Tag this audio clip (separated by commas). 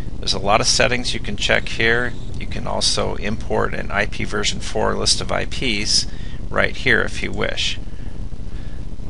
Speech